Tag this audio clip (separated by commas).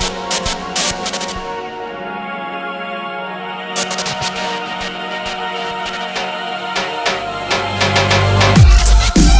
Dubstep, Electronic music, Music